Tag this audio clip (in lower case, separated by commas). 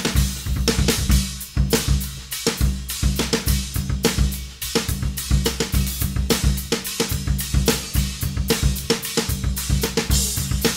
playing cymbal